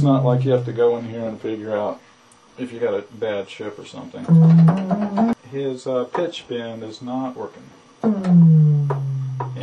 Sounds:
Sampler, Speech, Music

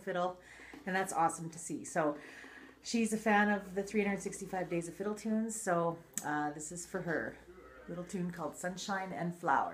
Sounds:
Speech

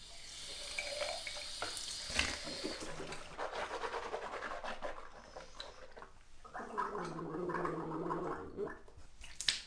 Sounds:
Toothbrush

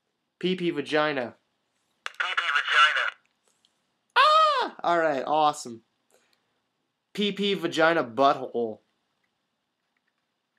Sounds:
inside a small room, Speech

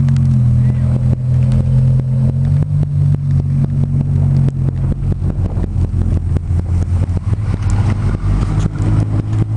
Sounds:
Speech

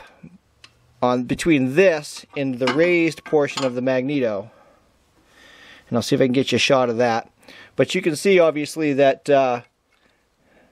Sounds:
inside a small room, Speech

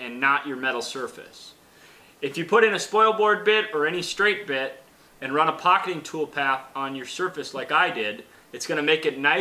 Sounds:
Speech

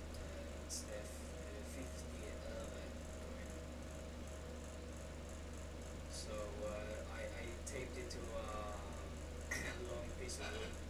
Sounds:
Speech

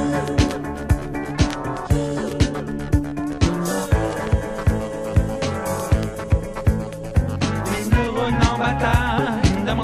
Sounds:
Music

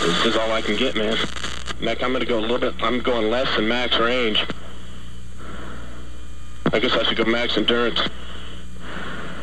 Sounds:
Speech

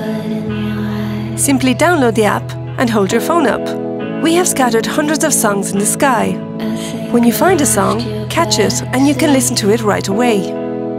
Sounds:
Background music, Music, Speech

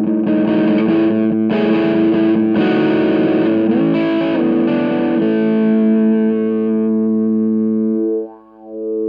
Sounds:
Music, Harmonic

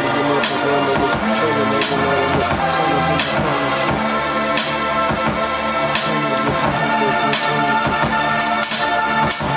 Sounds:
Electronica, Music

